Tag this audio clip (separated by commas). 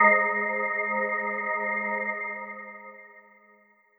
Musical instrument, Organ, Music, Keyboard (musical)